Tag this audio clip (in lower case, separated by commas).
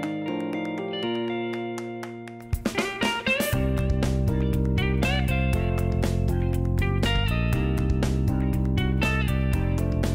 music